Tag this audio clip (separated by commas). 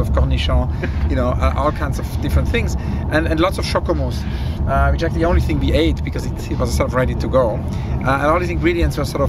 Motor vehicle (road), Car, Vehicle, Speech